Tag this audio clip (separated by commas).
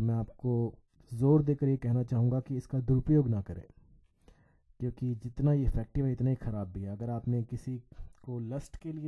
Speech